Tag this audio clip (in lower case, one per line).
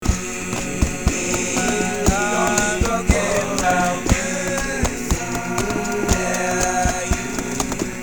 human voice